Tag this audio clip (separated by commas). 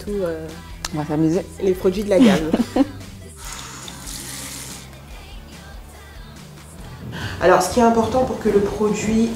Music, Speech